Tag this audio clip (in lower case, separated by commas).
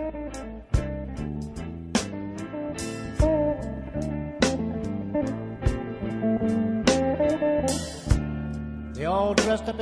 music, singing